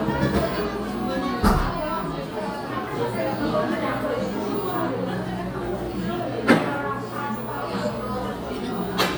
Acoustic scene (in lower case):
crowded indoor space